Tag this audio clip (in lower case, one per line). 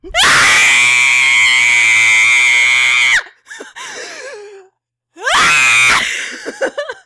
screaming
human voice